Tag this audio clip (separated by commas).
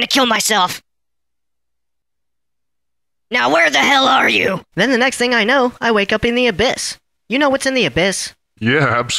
Speech